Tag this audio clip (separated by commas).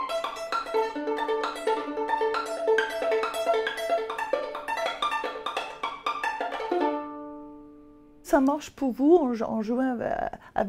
Speech, Musical instrument, Music